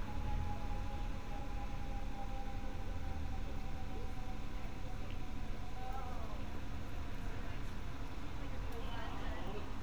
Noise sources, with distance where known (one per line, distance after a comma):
person or small group talking, far